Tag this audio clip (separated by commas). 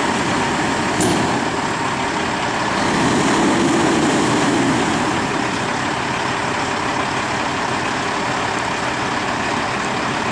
Vehicle